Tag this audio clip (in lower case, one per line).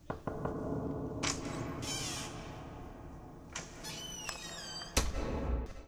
slam
domestic sounds
knock
door